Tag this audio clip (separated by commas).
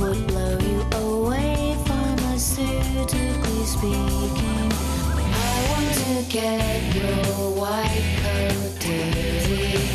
Music